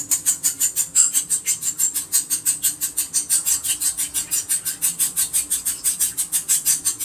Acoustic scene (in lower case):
kitchen